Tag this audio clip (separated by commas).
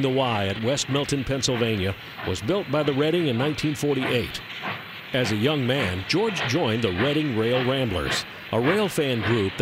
Speech, Train